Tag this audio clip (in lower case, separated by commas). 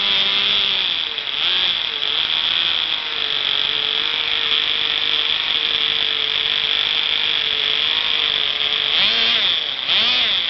medium engine (mid frequency)